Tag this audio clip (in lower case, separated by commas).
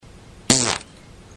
fart